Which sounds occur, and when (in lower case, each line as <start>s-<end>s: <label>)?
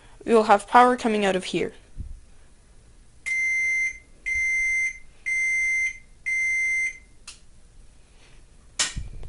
0.0s-9.2s: background noise
0.2s-1.7s: woman speaking
6.2s-7.0s: beep
8.8s-9.1s: thump